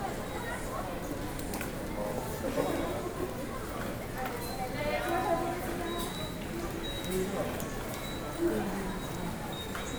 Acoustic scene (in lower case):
subway station